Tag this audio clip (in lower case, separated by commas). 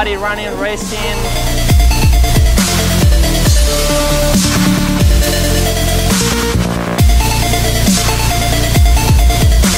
music, dubstep, speech